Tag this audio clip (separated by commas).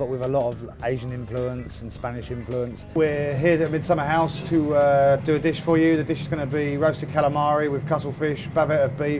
Music, Speech